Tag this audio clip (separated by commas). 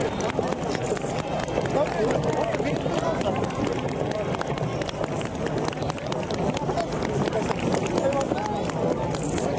Speech